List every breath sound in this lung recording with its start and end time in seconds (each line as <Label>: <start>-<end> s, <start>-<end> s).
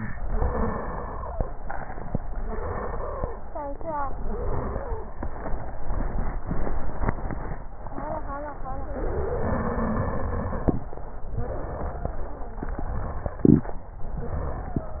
Inhalation: 0.17-1.42 s, 2.43-3.34 s, 4.18-5.09 s, 8.87-10.79 s, 12.71-13.52 s, 14.20-15.00 s
Exhalation: 1.60-2.24 s, 11.44-12.54 s
Wheeze: 11.44-12.54 s, 14.20-15.00 s
Stridor: 0.13-1.42 s, 2.43-3.34 s, 4.18-5.09 s, 8.87-10.79 s, 12.71-13.52 s
Crackles: 1.60-2.24 s